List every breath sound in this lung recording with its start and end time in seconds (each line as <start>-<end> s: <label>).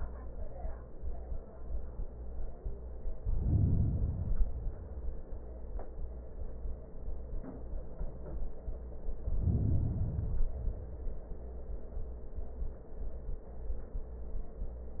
3.12-4.88 s: inhalation
4.89-6.19 s: exhalation
8.94-10.16 s: inhalation
10.16-11.62 s: exhalation